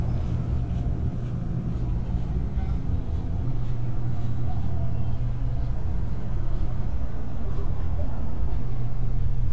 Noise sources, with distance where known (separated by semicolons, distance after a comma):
engine of unclear size, near; person or small group talking, far